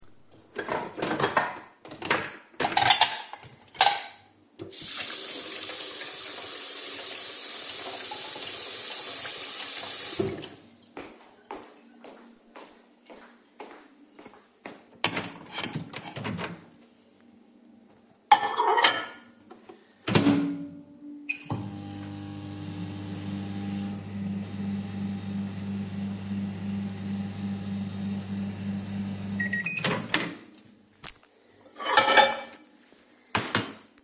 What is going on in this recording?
I move some cutlery and dishes and take out a plate. I run tap water and walk to the table to put the plate down. I open the microwave, place the plate inside, and close it. The microwave beeps once. I open the microwave and take the plate out.